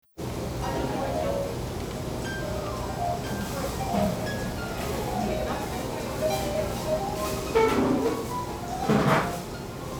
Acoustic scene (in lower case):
restaurant